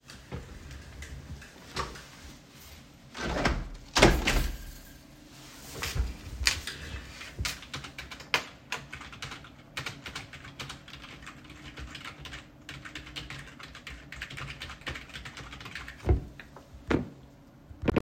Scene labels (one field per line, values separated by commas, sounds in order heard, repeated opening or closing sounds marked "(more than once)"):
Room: office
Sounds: window, keyboard typing